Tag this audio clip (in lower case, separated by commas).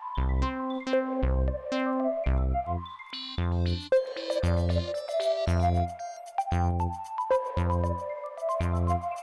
music